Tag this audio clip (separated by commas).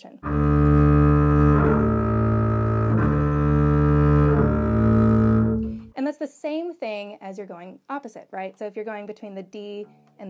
playing double bass